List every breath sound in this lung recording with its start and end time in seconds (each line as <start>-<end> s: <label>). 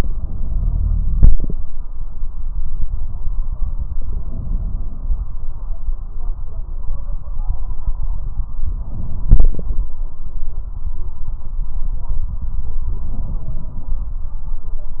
0.02-1.52 s: inhalation
4.01-5.34 s: inhalation
8.59-9.91 s: inhalation
12.78-14.10 s: inhalation